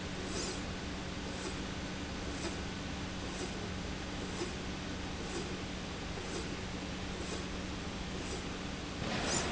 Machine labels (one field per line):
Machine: slide rail